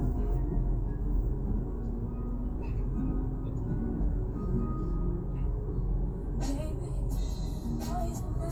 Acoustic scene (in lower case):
car